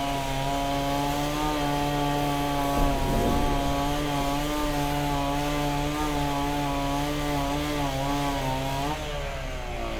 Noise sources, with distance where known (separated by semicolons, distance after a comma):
chainsaw, near